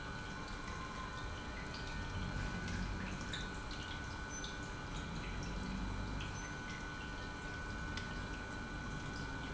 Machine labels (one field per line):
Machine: pump